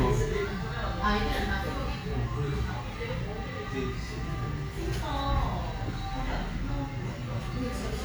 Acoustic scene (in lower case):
cafe